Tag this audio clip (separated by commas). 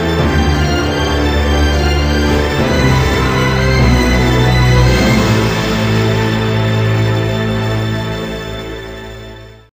Music